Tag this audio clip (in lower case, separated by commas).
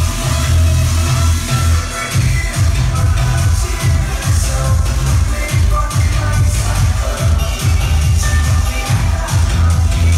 music